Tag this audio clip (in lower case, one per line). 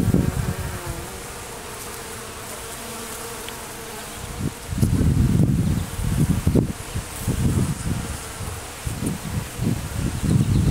etc. buzzing